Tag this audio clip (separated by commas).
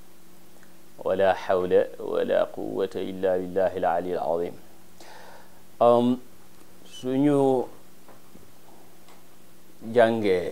Speech